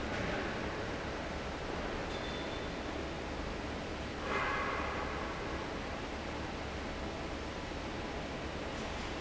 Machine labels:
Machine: fan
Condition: normal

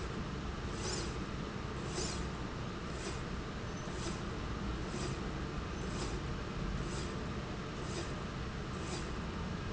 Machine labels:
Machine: slide rail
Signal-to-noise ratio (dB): -6 dB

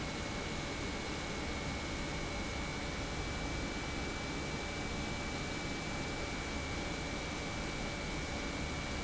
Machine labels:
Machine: pump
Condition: normal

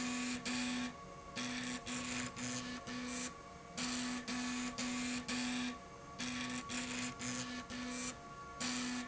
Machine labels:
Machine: slide rail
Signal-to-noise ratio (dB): 6 dB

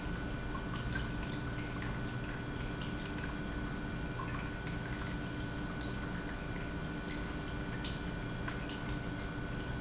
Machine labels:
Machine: pump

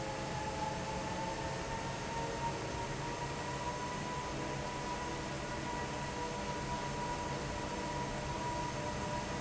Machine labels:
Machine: fan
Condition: normal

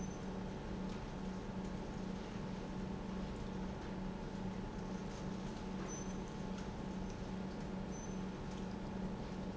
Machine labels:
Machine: pump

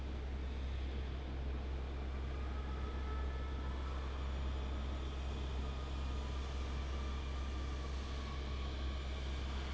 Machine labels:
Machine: fan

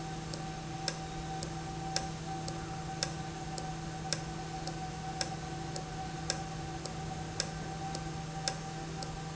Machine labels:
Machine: valve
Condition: normal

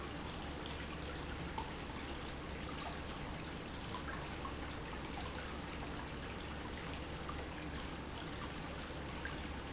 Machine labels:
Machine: pump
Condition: normal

